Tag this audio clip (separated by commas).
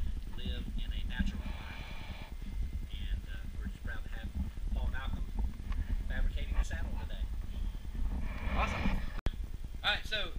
Speech